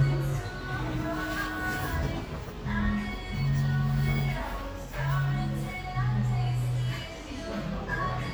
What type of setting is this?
cafe